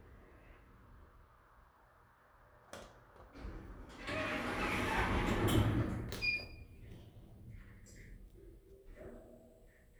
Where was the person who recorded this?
in an elevator